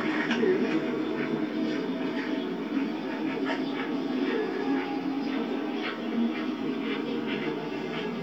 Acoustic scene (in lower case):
park